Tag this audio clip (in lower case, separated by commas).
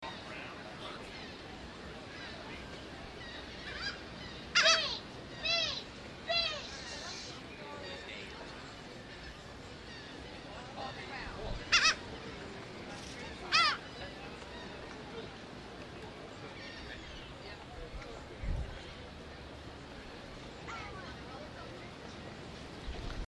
gull, wild animals, bird, animal